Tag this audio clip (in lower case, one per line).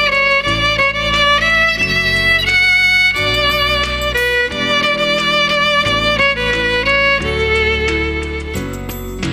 music
fiddle
playing violin
musical instrument